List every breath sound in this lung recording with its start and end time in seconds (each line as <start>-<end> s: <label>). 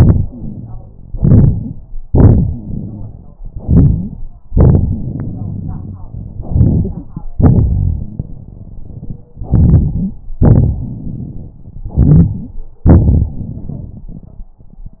1.10-1.81 s: inhalation
1.10-1.81 s: crackles
2.06-3.15 s: exhalation
2.47-3.15 s: wheeze
3.50-4.20 s: inhalation
3.50-4.20 s: crackles
4.49-6.02 s: exhalation
4.99-6.03 s: wheeze
6.37-7.25 s: inhalation
6.37-7.25 s: crackles
7.37-9.27 s: exhalation
7.37-9.27 s: crackles
9.37-10.18 s: inhalation
9.37-10.18 s: crackles
10.42-11.60 s: exhalation
10.42-11.60 s: crackles
11.86-12.58 s: inhalation
12.88-14.54 s: exhalation
12.88-14.54 s: crackles